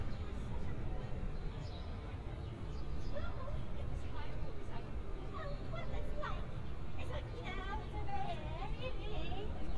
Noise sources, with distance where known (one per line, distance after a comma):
person or small group talking, near